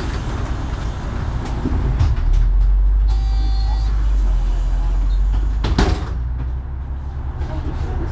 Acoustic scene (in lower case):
bus